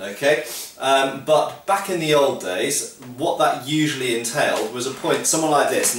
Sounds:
Speech

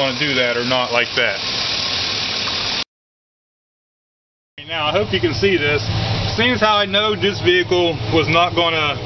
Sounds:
outside, urban or man-made, Engine, Speech, Car, Vehicle

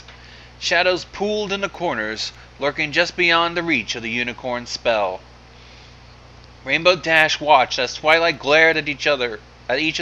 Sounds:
Speech

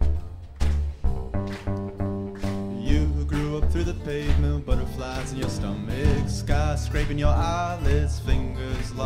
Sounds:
Music

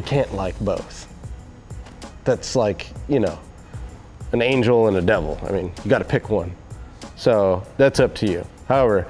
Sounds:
Music, Speech

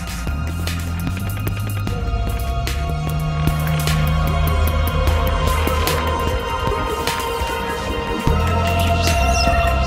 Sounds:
Music

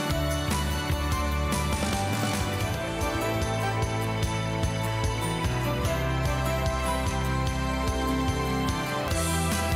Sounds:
Music

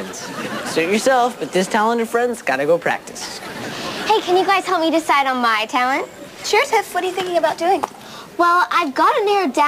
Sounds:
Speech

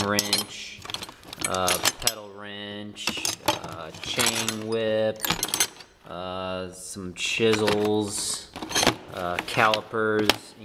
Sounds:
Speech, Tools

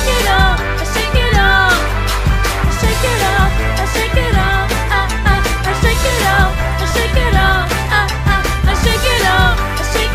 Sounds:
Music

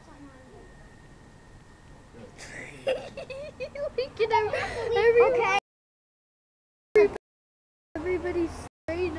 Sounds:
Speech

